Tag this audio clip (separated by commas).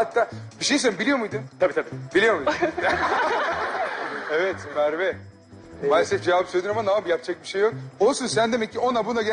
Music, Speech